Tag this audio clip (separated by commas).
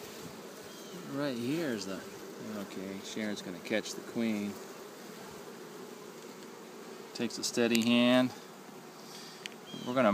bee or wasp, Insect, housefly